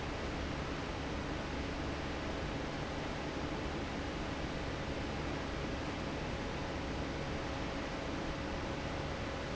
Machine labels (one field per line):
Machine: fan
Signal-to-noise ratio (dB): -6 dB